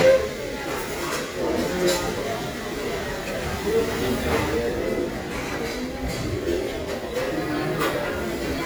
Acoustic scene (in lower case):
crowded indoor space